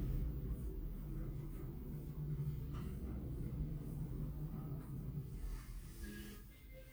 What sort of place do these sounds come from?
elevator